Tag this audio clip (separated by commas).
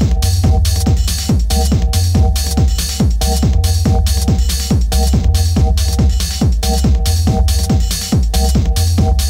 Disco, Music, Dance music, Pop music